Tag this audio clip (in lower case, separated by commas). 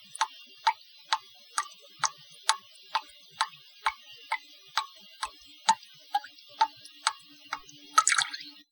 drip, liquid